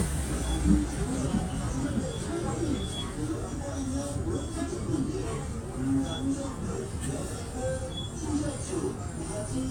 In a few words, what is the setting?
bus